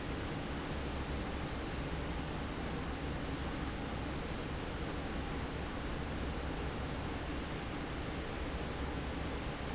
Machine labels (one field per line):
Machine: fan